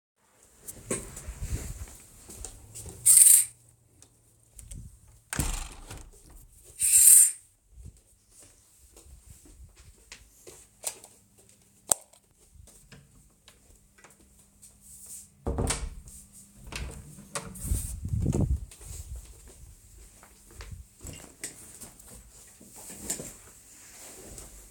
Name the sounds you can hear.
footsteps, window, door